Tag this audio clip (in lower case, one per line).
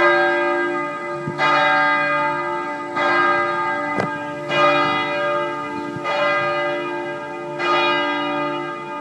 church bell
church bell ringing